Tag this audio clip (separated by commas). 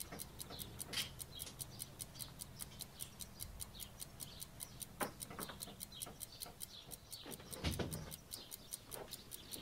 Animal